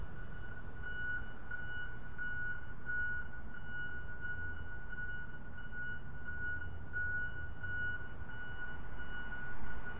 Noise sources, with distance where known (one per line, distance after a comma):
reverse beeper, near